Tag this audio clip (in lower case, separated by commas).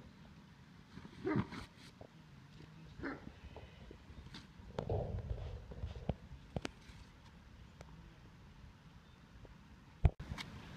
roaring cats, animal, lions growling